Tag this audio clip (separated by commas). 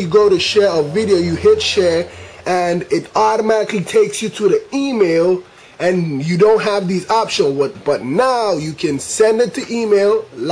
Speech